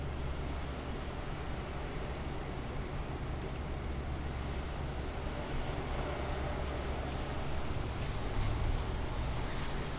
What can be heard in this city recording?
engine of unclear size